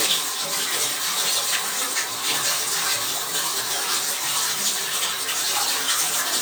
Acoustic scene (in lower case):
restroom